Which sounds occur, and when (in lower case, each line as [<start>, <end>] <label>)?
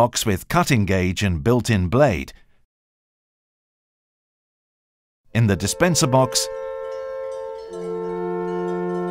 [0.00, 2.35] man speaking
[2.27, 2.65] breathing
[5.26, 9.10] music
[5.30, 6.50] man speaking
[6.83, 9.10] change ringing (campanology)